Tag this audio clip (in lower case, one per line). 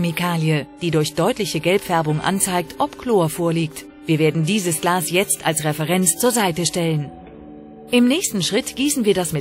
music
speech